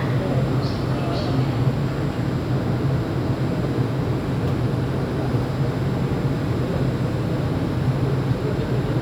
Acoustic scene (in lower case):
subway station